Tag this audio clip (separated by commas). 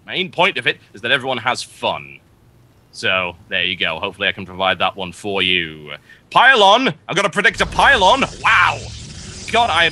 Speech